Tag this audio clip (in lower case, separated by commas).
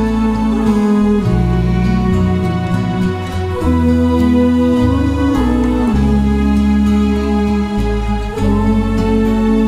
music, gospel music